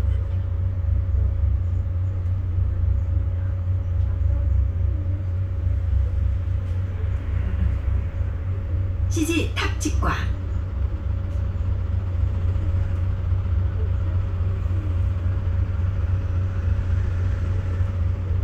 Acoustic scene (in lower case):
bus